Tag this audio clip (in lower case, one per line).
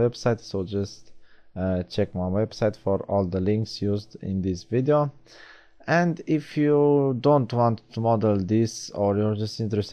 speech